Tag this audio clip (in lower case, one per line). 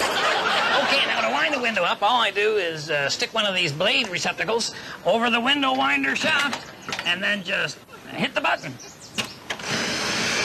speech